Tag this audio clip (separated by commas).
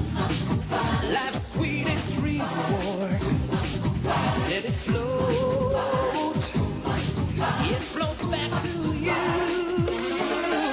Music